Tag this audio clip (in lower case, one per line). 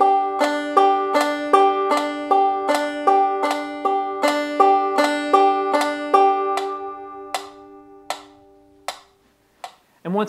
playing banjo